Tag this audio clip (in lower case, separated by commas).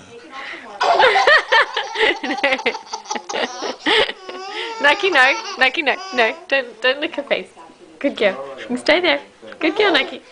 speech, laughter